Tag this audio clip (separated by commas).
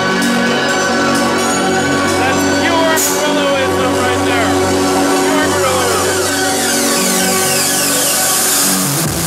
Speech, Music